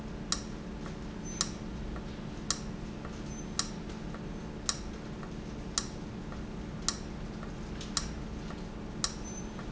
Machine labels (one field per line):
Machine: valve